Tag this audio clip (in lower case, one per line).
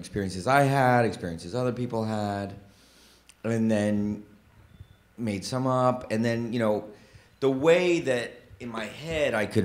speech